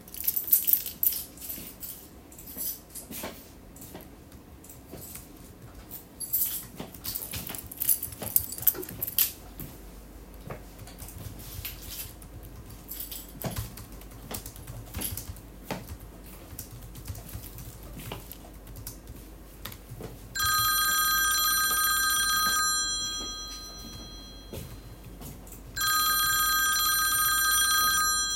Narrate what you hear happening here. I moved my keychain while walking by my desk; then sat down and started typing my keyboard. Then the phone began ringing.